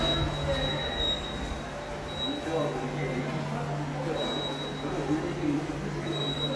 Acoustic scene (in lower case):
subway station